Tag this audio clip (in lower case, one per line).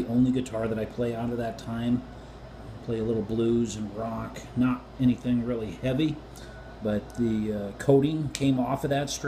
speech